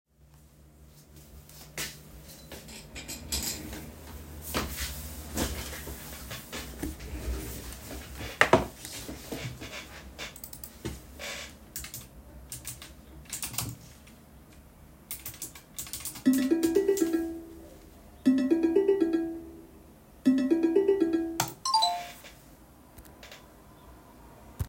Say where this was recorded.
living room